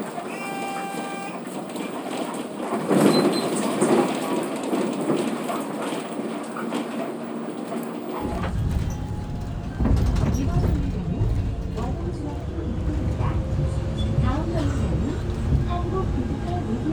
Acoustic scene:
bus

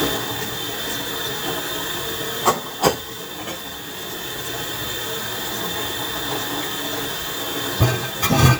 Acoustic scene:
kitchen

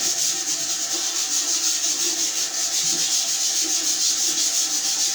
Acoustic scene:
restroom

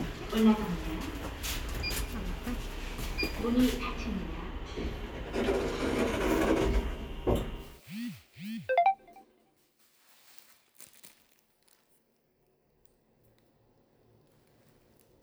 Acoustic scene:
elevator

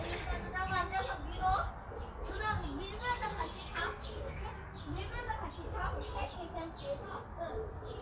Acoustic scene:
park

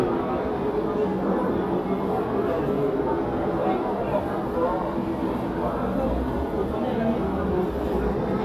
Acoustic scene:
crowded indoor space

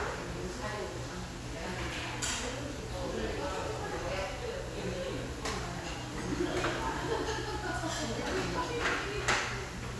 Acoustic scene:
restaurant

